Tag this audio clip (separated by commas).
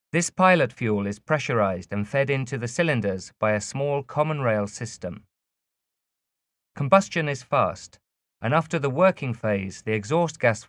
Speech